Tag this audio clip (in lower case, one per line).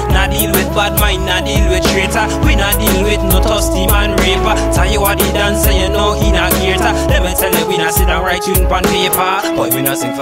music
independent music